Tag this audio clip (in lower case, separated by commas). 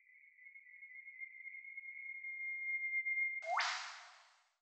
wild animals, animal, bird